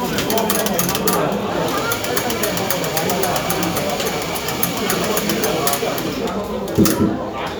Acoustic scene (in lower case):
cafe